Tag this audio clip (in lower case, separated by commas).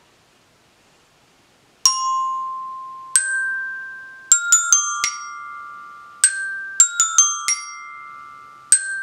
playing glockenspiel